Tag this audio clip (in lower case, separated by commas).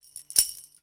musical instrument, music, tambourine, percussion